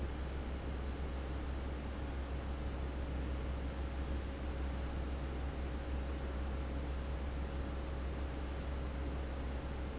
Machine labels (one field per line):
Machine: fan